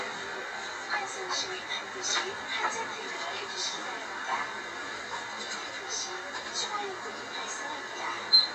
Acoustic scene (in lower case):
bus